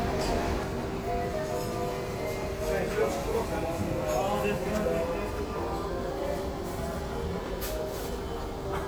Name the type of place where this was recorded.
restaurant